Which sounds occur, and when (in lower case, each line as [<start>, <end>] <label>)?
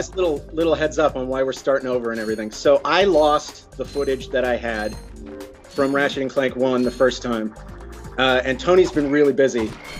[0.00, 9.95] music
[0.11, 0.38] male speech
[0.51, 3.52] male speech
[2.11, 2.48] beep
[3.12, 3.37] beep
[3.70, 4.98] male speech
[3.87, 4.22] beep
[4.73, 5.10] beep
[5.68, 7.49] male speech
[5.70, 6.01] beep
[6.77, 7.12] beep
[8.13, 9.69] male speech
[9.78, 9.95] beep